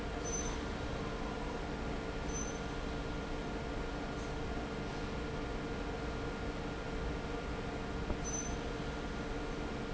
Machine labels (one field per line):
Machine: fan